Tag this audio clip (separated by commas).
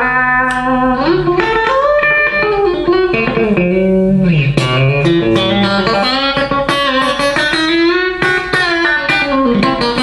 Music